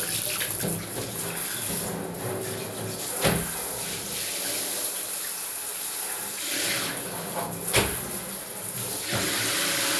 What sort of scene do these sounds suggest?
restroom